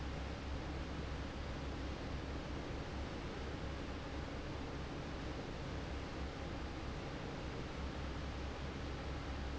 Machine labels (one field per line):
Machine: fan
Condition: normal